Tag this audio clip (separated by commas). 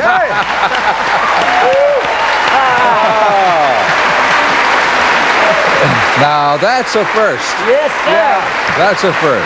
Applause